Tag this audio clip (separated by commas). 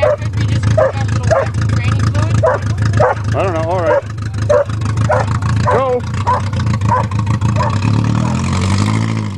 outside, rural or natural, Car, Vehicle, Speech